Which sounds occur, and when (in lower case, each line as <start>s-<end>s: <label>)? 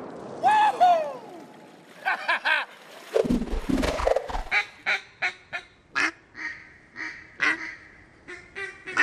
0.0s-4.5s: water
0.0s-9.0s: wind
0.4s-1.1s: shout
2.0s-2.6s: giggle
2.6s-3.7s: splatter
2.8s-4.3s: sound effect
4.5s-4.7s: duck call (hunting tool)
4.5s-9.0s: background noise
4.8s-5.0s: duck call (hunting tool)
5.2s-5.3s: duck call (hunting tool)
5.5s-5.6s: duck call (hunting tool)
5.9s-6.1s: duck call (hunting tool)
6.3s-6.5s: duck call (hunting tool)
6.9s-7.1s: duck call (hunting tool)
7.4s-7.8s: duck call (hunting tool)
8.3s-9.0s: duck call (hunting tool)